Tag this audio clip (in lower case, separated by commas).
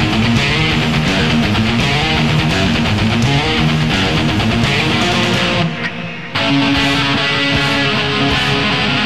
plucked string instrument, musical instrument, electric guitar, guitar, strum, music